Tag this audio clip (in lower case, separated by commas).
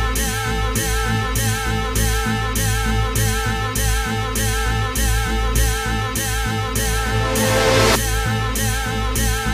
music, psychedelic rock